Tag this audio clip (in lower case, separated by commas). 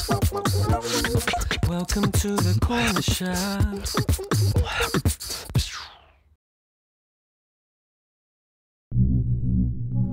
music, beatboxing